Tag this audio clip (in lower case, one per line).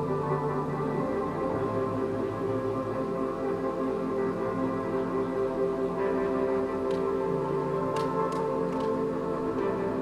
ambient music
music